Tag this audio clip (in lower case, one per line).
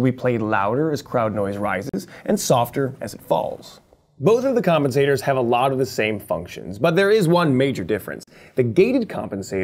speech